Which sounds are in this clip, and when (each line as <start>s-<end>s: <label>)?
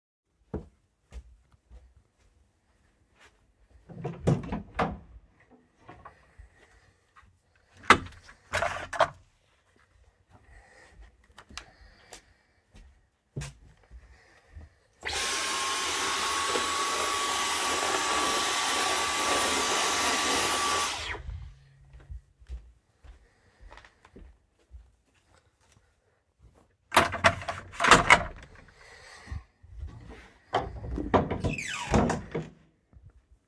0.5s-4.0s: footsteps
3.6s-5.4s: door
10.1s-15.0s: footsteps
15.0s-21.5s: vacuum cleaner
21.1s-26.9s: footsteps
29.2s-30.1s: footsteps
30.5s-32.5s: door